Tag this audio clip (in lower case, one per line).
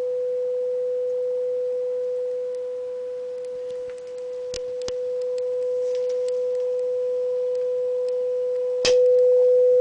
reverberation